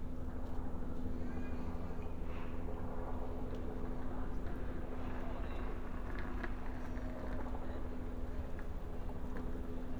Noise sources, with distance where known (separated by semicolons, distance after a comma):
background noise